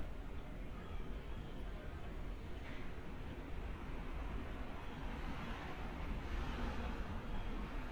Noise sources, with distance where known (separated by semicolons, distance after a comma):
background noise